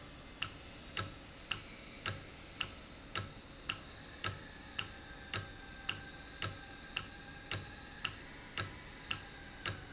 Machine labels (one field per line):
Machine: valve